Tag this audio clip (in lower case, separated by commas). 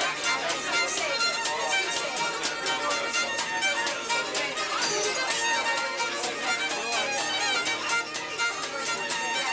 musical instrument, music, violin